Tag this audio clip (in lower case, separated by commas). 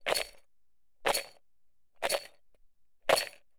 rattle